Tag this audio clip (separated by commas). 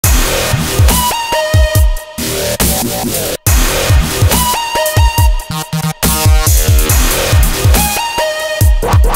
Music